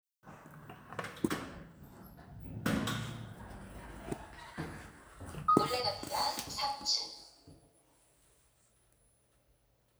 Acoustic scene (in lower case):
elevator